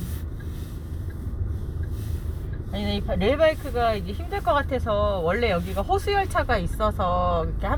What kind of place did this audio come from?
car